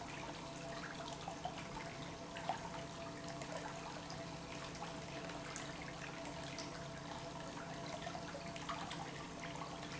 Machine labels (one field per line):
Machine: pump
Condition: normal